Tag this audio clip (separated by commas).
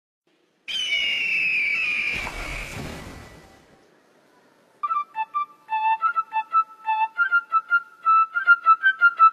inside a large room or hall, Music